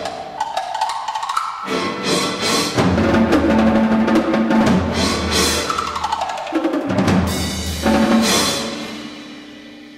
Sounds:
orchestra
music

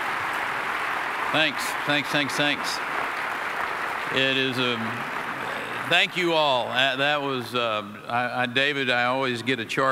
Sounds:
speech
male speech
monologue

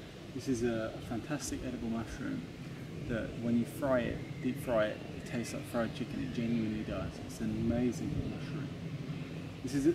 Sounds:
speech

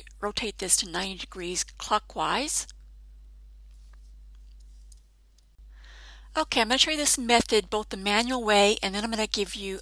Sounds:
speech
clicking

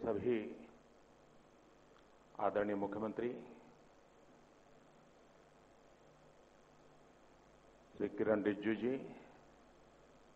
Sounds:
speech
man speaking
narration

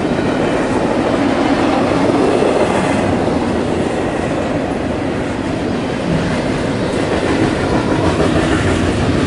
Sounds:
clickety-clack
railroad car
train
rail transport

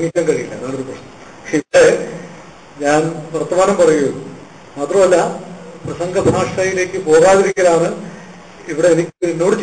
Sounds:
speech
man speaking
narration

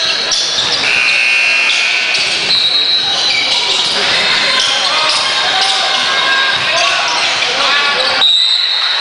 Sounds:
speech

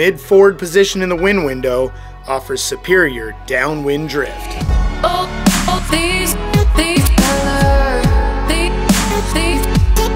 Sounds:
music
speech

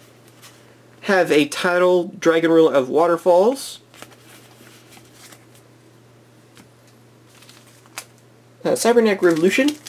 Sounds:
inside a small room
speech

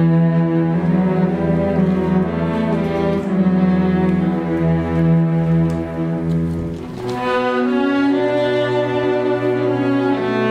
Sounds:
playing cello
orchestra
cello
music
bowed string instrument
double bass
musical instrument

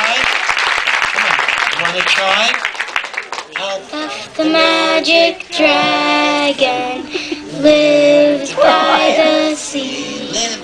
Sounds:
singing
child singing
speech

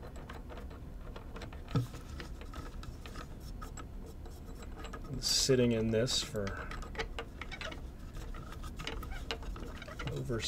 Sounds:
speech

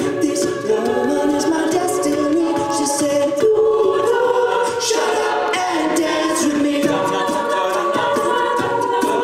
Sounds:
music
a capella
singing
choir

